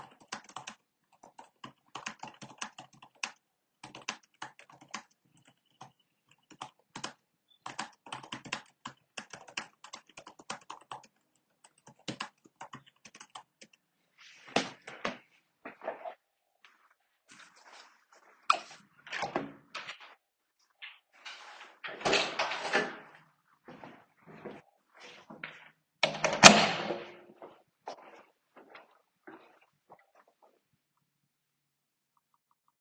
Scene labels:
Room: bedroom, hallway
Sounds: keyboard typing, light switch, door (more than once), footsteps

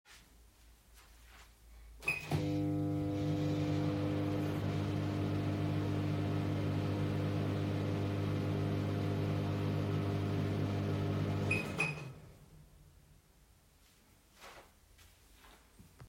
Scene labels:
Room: kitchen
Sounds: microwave

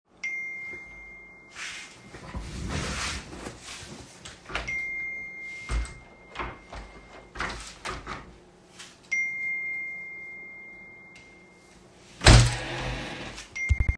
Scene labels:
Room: office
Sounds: phone ringing, footsteps, window (more than once)

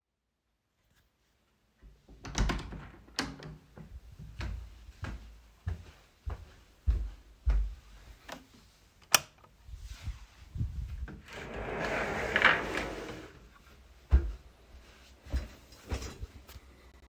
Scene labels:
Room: hallway, office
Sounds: door (more than once), footsteps, light switch

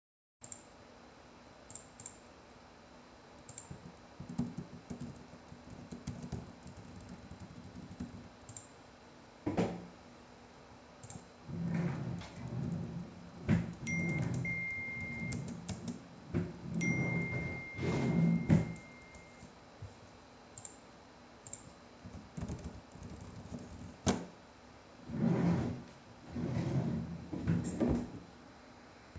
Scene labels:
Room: office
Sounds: keyboard typing, wardrobe or drawer (more than once), phone ringing

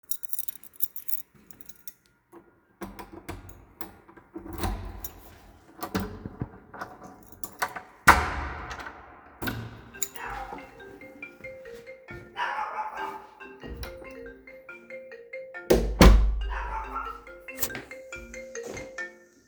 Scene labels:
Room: hallway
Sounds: keys, door (more than once), phone ringing

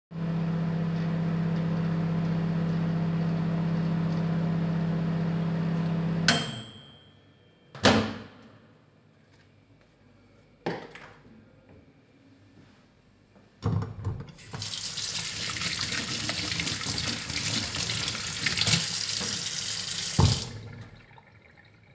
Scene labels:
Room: kitchen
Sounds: microwave, running water

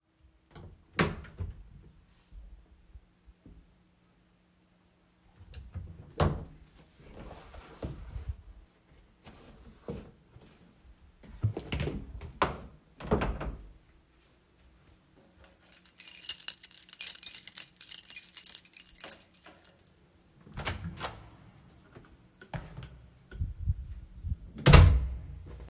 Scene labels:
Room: living room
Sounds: wardrobe or drawer (more than once), keys, door (more than once), footsteps

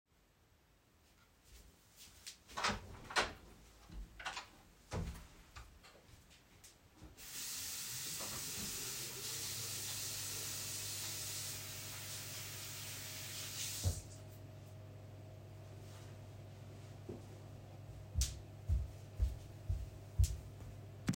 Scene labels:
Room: bedroom, bathroom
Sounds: footsteps, door (more than once), running water

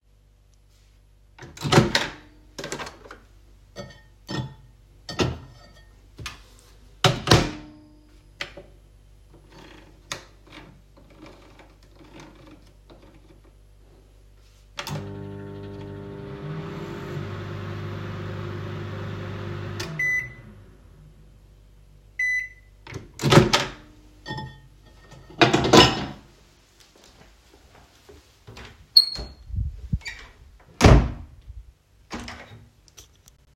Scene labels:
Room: kitchen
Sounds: microwave, cutlery and dishes, door

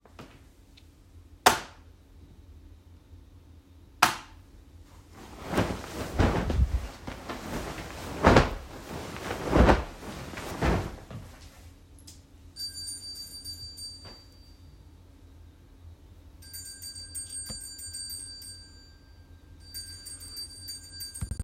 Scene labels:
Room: bedroom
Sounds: light switch, bell ringing

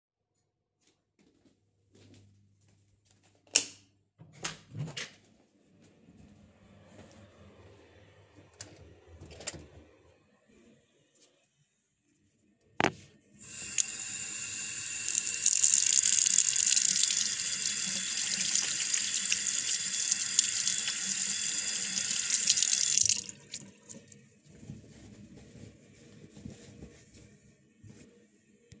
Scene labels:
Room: bathroom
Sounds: footsteps, light switch, door (more than once), toilet flushing, running water

